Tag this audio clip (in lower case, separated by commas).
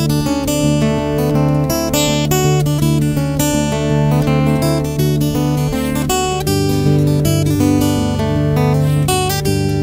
music, musical instrument, strum, guitar, acoustic guitar, plucked string instrument